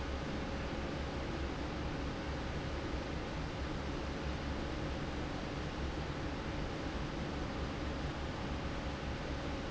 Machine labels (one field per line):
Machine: fan